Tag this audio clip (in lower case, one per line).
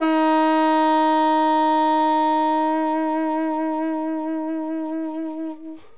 musical instrument
music
woodwind instrument